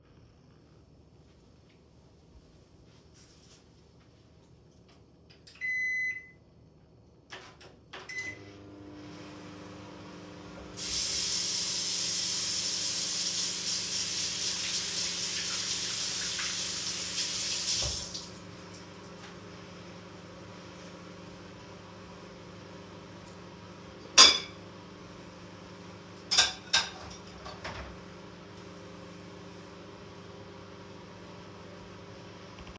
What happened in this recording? I turned on the microwave and washed my hands. Then I dried them with a towel and placed a plate in the designated area.